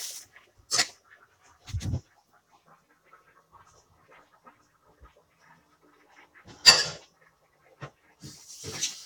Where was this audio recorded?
in a kitchen